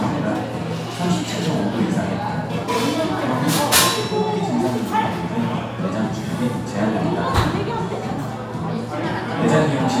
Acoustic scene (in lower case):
crowded indoor space